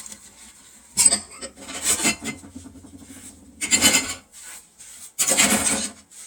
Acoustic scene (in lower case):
kitchen